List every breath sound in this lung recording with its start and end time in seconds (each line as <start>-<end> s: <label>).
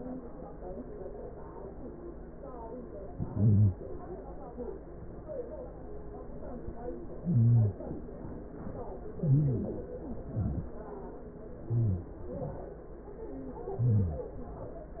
2.92-3.59 s: inhalation
2.92-3.59 s: stridor
3.64-4.02 s: exhalation
3.64-4.02 s: stridor
6.98-7.97 s: inhalation
6.98-7.97 s: stridor
8.03-8.54 s: exhalation
8.03-8.54 s: stridor
9.01-9.79 s: inhalation
9.01-9.79 s: stridor
9.87-10.65 s: exhalation
9.87-10.65 s: stridor
11.74-12.16 s: inhalation
11.74-12.16 s: stridor
12.20-12.62 s: exhalation
12.20-12.62 s: stridor
13.30-13.95 s: inhalation
13.30-13.95 s: stridor
13.96-14.61 s: exhalation
13.96-14.61 s: stridor